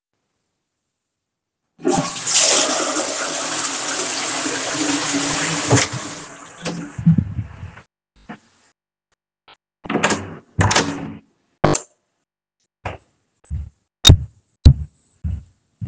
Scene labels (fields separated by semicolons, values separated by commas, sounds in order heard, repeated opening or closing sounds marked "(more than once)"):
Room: lavatory, hallway; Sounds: toilet flushing, door, footsteps